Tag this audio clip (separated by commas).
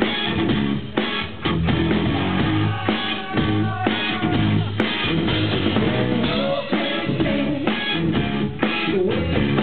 Music